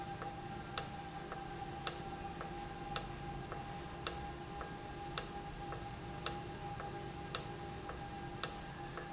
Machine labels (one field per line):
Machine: valve